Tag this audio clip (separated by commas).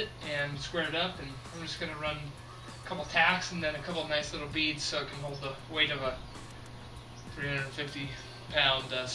Speech, Music